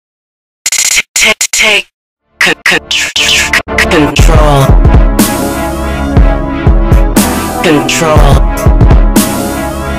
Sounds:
Dubstep, Music, Speech

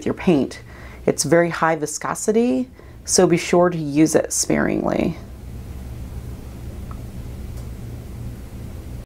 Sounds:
Speech

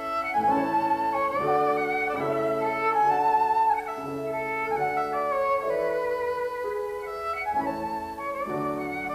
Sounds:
Musical instrument, Music, fiddle

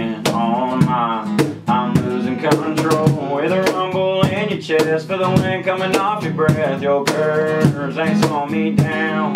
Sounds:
Music

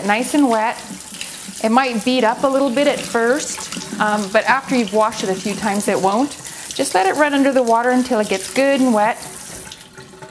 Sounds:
Water, Sink (filling or washing)

